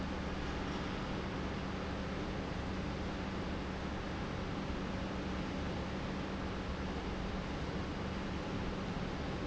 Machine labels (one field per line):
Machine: pump